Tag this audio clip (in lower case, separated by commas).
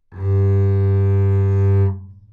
music, musical instrument, bowed string instrument